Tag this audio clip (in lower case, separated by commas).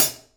cymbal, hi-hat, music, percussion, musical instrument